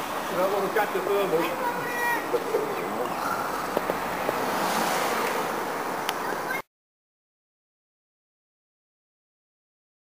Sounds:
outside, urban or man-made, speech

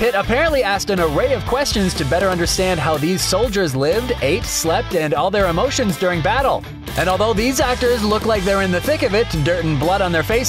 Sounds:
speech, music

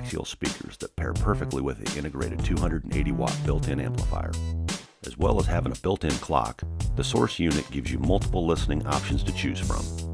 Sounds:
speech, music

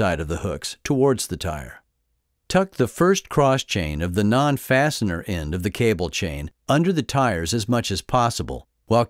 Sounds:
speech

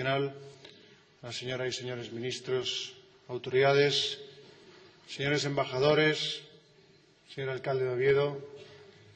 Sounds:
male speech, speech, narration

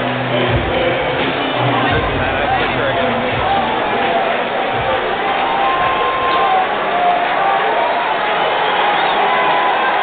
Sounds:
speech

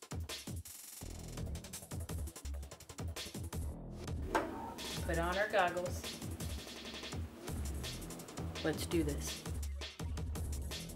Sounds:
music, speech

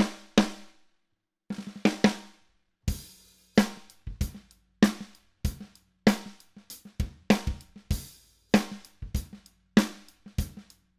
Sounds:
playing drum kit, music, musical instrument, drum kit, drum

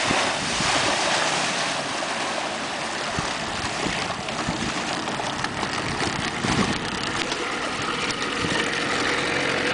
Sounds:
vehicle, water vehicle, motorboat

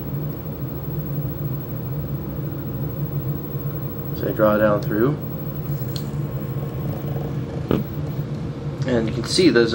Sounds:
inside a small room, speech

